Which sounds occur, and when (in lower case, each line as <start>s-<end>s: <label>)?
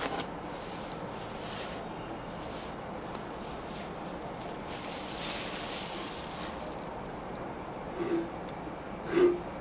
0.0s-0.3s: crinkling
0.0s-9.6s: mechanisms
0.4s-1.9s: crinkling
2.1s-6.9s: crinkling
7.9s-8.3s: human sounds
9.0s-9.5s: human sounds